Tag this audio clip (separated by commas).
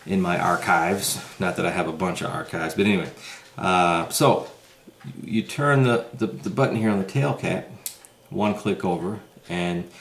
Speech, inside a small room